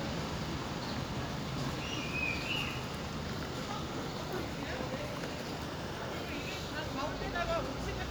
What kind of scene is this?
residential area